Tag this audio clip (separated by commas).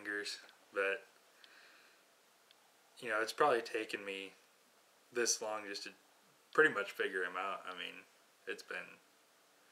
Speech